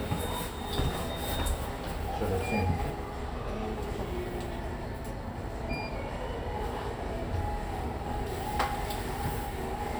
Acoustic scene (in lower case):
elevator